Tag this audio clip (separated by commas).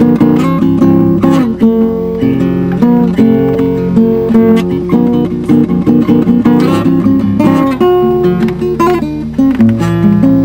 Guitar, Musical instrument, Strum, Plucked string instrument, Music